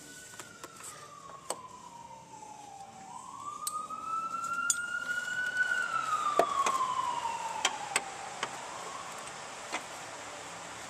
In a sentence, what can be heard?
An emergency vehicle siren sounds, gets louder and fades, and clicking sounds are occurring